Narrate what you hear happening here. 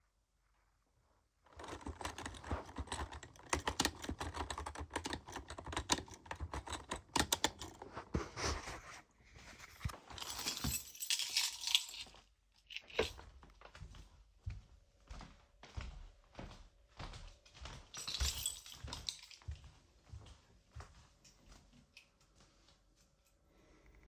I was typing on my keyboard, then i took my keychain and walked across the hallway.